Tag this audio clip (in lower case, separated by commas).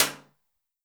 hands, clapping